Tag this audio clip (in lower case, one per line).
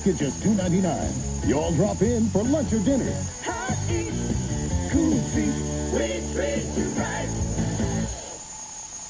music
speech